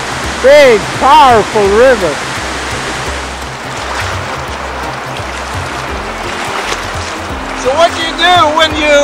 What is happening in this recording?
Water splashing, people speak with music playing in the background.